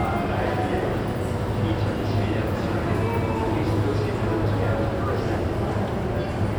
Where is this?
in a subway station